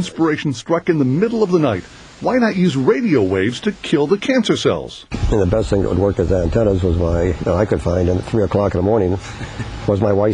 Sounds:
speech

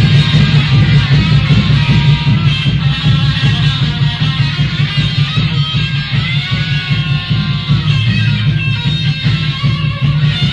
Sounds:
music

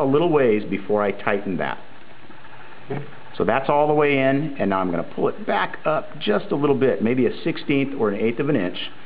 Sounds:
speech

